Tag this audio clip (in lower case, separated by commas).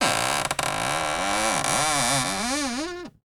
cupboard open or close, home sounds